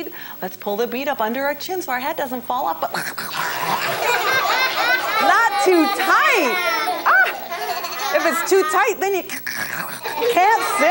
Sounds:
Speech, inside a small room

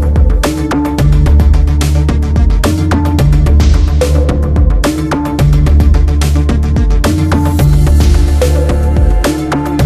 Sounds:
Rhythm and blues, Music

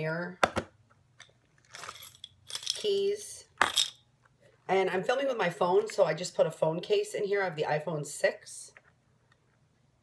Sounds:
inside a small room, Speech

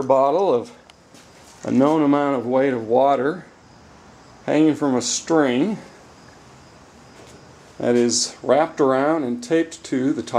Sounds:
Speech

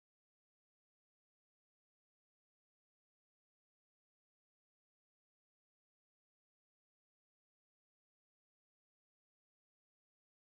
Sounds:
cupboard opening or closing

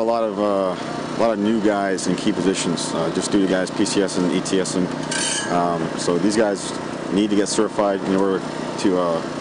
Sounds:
Speech

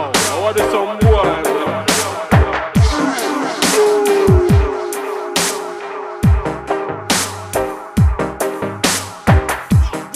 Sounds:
Music, Electronic music, Dubstep

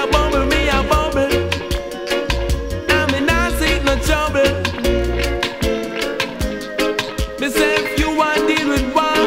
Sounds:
Reggae, Music

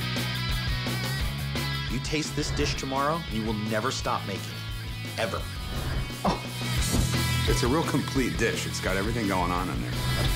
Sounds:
Speech, Music

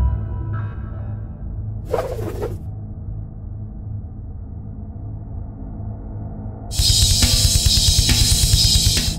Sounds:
Bass drum, Drum kit, Drum, Percussion

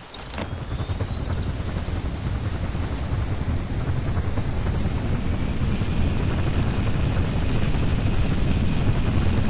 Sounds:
Vehicle

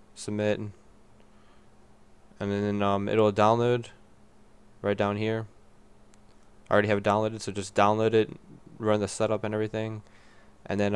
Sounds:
Speech

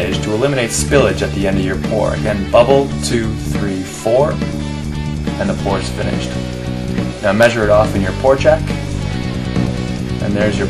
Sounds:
Speech, Music

